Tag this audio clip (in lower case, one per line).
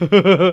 human voice
laughter